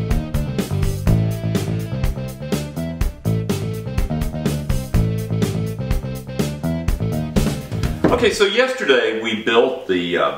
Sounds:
Speech, Music

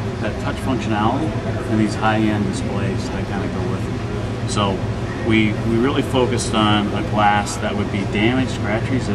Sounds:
Speech

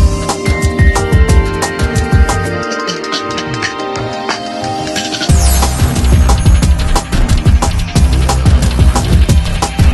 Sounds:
Music

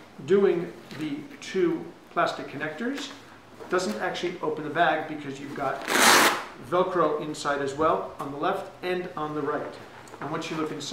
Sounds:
Speech, inside a large room or hall

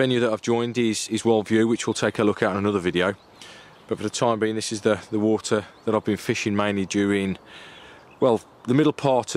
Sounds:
Speech

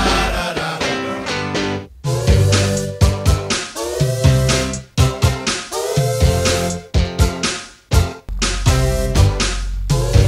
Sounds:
Funk, Soul music, Music

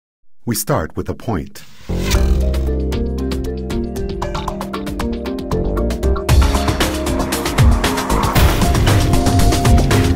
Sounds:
Speech, Music

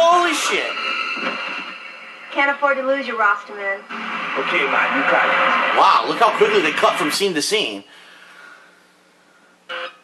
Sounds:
Speech

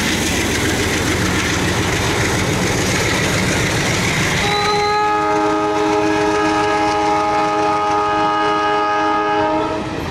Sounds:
Train, Clickety-clack, train wagon, Train horn, Rail transport

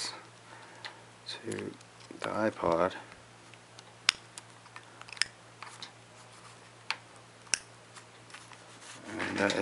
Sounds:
Speech

